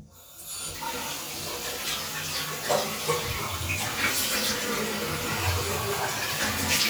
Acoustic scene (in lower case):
restroom